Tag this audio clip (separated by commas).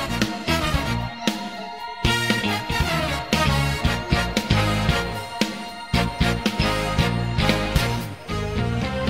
Theme music, Music